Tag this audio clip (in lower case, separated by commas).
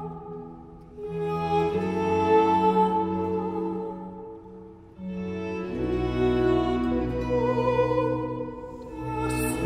music